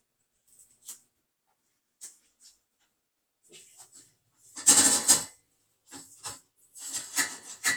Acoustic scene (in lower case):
kitchen